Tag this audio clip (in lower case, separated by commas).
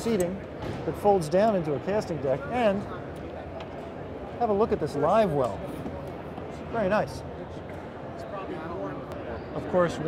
speech